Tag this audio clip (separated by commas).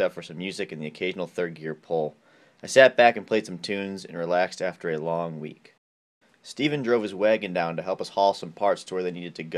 Speech